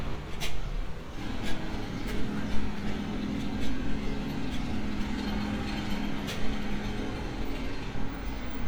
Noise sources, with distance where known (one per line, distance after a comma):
jackhammer, far
non-machinery impact, near